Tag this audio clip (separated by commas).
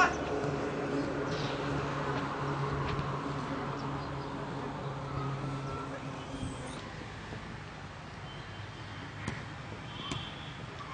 outside, urban or man-made